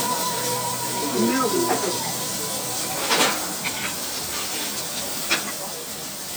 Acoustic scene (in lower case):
restaurant